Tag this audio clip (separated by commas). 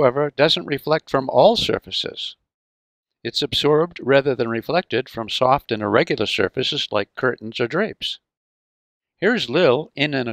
Speech